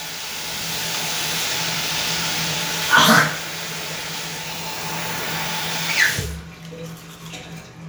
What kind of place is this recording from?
restroom